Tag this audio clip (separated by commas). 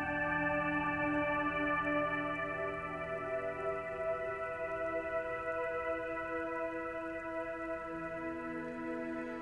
Music